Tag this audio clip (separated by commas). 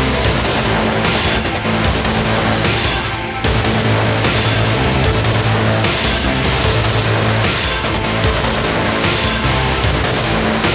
Angry music, Music